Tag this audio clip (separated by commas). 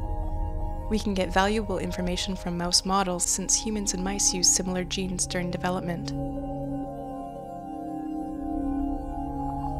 Speech, Music